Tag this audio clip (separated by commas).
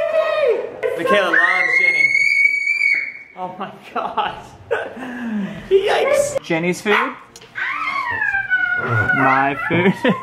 Speech, inside a large room or hall